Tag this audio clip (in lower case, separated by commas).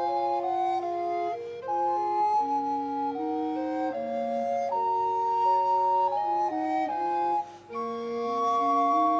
soul music, music